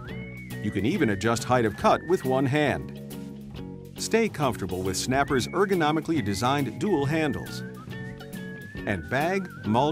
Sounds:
music
speech

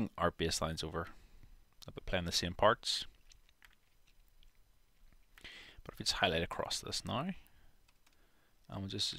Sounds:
speech

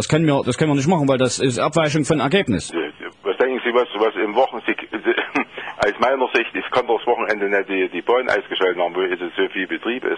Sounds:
speech

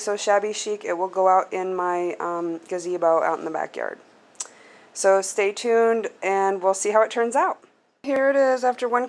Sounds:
speech

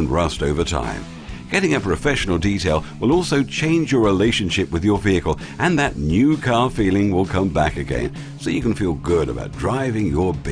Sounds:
speech
music

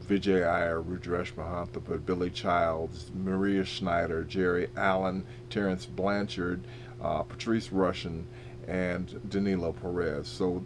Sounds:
speech

